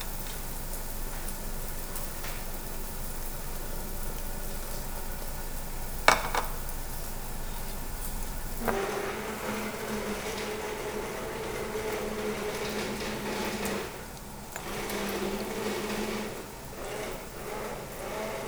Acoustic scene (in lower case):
restaurant